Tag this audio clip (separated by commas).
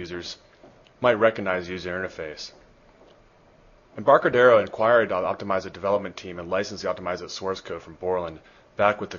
Speech